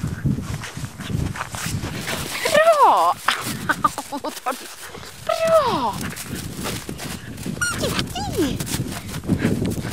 Wind blows and people speak as a dog growls and rustles